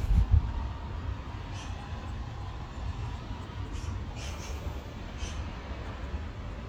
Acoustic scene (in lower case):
park